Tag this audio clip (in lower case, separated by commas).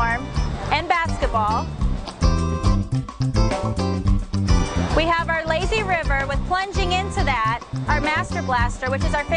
gurgling, music, speech